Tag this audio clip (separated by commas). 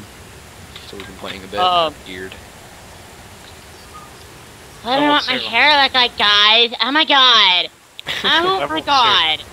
Speech, outside, rural or natural